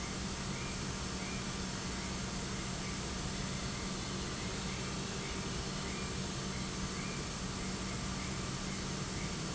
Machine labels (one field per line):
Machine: pump